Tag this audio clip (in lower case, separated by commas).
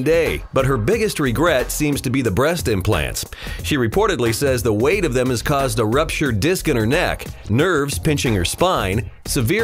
music, speech